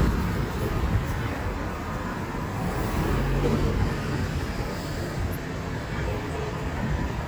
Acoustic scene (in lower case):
street